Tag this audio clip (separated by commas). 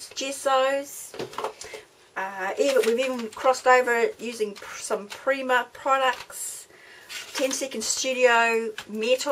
Speech